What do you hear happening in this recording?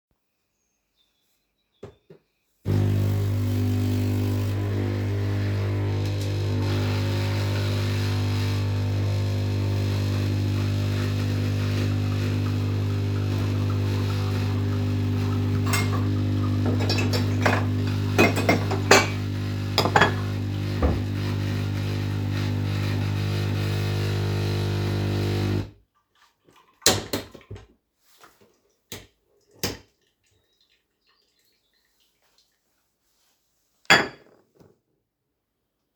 I turned on the coffee machine, looked for a saucer, and set out the full cup together with the saucer.